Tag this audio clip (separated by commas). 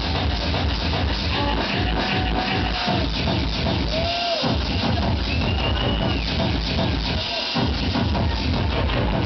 Music, Pop music